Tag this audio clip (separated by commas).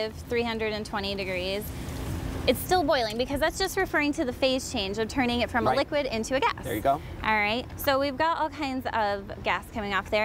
Speech